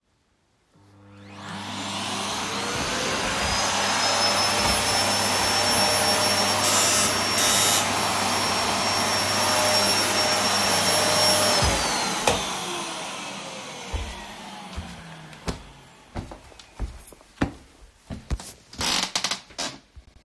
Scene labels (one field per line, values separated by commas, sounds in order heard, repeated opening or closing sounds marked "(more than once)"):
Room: living room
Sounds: vacuum cleaner, bell ringing, footsteps